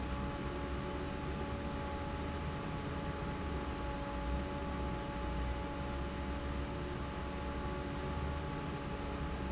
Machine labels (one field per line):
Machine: fan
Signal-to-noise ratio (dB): -6 dB